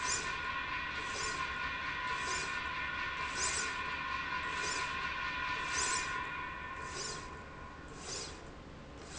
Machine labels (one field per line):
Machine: slide rail